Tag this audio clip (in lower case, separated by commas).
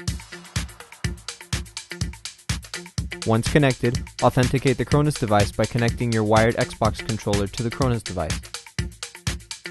music, speech